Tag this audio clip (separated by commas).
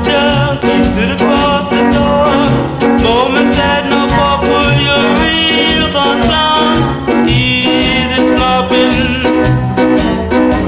Jazz, Music